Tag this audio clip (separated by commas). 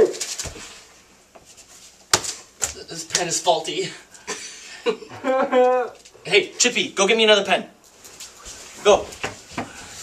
inside a small room, Speech